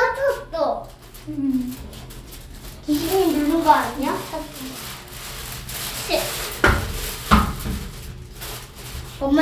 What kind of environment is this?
elevator